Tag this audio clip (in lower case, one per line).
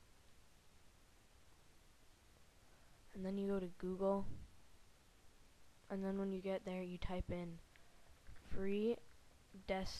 speech